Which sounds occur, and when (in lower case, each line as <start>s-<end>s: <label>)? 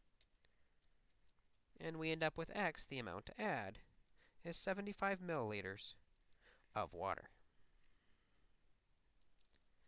0.0s-9.8s: mechanisms
0.1s-0.4s: generic impact sounds
0.7s-1.8s: generic impact sounds
1.7s-3.8s: man speaking
3.7s-4.1s: generic impact sounds
4.1s-4.3s: breathing
4.4s-6.0s: man speaking
6.0s-6.3s: generic impact sounds
6.4s-6.6s: breathing
6.7s-7.2s: man speaking
7.4s-8.6s: breathing
8.9s-9.8s: generic impact sounds